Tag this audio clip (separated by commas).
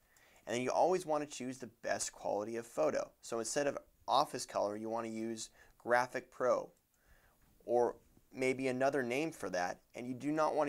Speech